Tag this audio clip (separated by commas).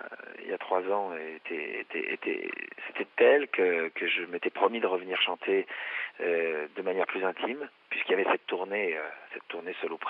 Speech